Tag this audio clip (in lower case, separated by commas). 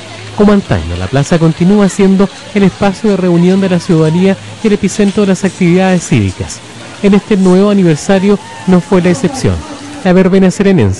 speech